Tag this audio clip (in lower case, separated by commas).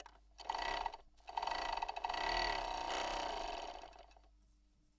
mechanisms